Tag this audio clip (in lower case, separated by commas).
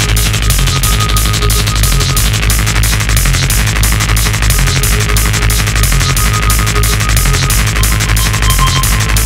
video game music, music, musical instrument, soundtrack music